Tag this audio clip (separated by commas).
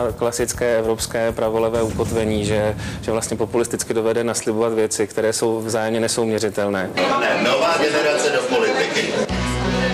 Music, Speech